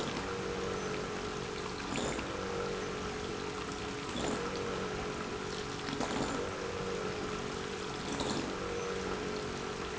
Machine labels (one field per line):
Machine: pump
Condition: abnormal